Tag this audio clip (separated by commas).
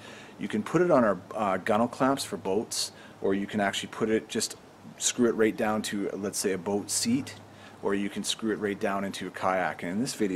Speech